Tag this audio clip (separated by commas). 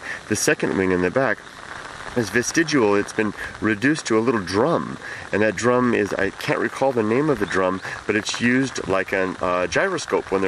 Speech